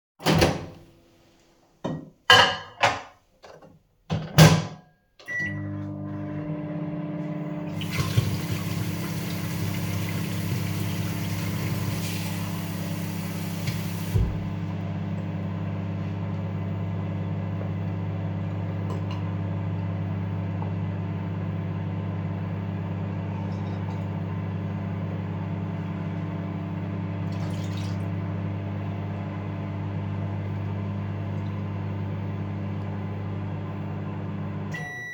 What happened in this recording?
I opened the microwave, put the plate inside, turned it on, turned on the water and poured some into a glass, and took a loud sip.